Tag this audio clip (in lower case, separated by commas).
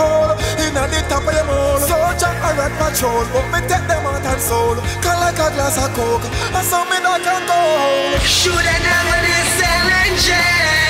exciting music, pop music, music